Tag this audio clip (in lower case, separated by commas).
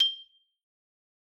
marimba, percussion, musical instrument, mallet percussion, music